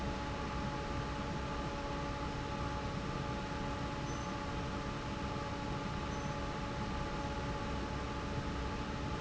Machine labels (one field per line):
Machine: fan